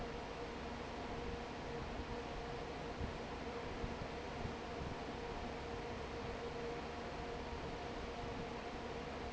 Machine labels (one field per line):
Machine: fan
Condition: normal